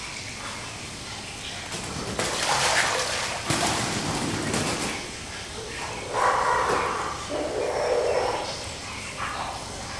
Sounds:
splatter, Water, Liquid

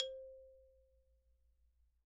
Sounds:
Mallet percussion, Percussion, Marimba, Musical instrument, Music

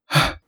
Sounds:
Human voice, Respiratory sounds, Breathing

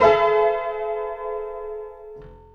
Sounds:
Musical instrument, Piano, Keyboard (musical), Music

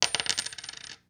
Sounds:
Coin (dropping), home sounds

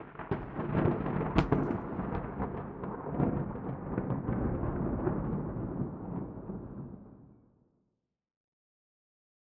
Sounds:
Thunderstorm, Thunder

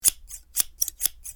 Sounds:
Scissors, home sounds

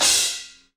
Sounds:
Musical instrument, Crash cymbal, Percussion, Music, Cymbal

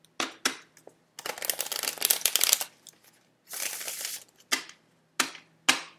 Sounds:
home sounds

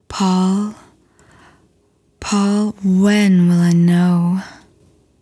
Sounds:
Human voice, Female speech, Speech

